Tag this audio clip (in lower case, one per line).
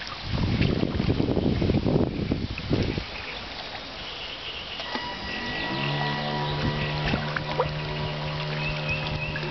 motorboat